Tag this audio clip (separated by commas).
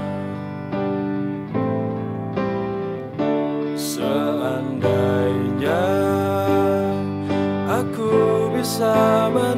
Music, Happy music